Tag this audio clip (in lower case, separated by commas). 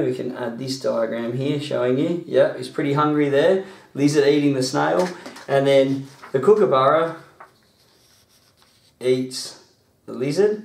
inside a small room, speech